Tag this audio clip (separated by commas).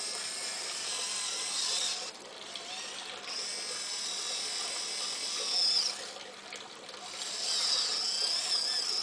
Hiss